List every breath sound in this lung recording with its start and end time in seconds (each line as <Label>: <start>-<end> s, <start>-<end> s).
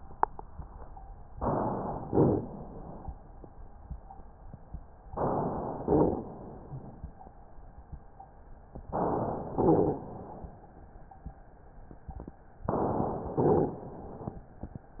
Inhalation: 1.37-2.08 s, 5.16-5.87 s, 8.87-9.58 s, 12.68-13.39 s
Exhalation: 2.05-3.17 s, 5.86-6.97 s, 9.60-10.67 s, 13.41-14.44 s